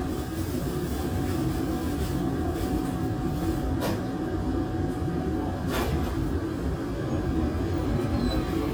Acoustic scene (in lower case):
subway train